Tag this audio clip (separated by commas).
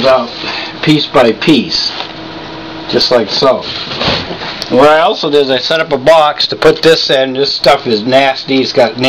Speech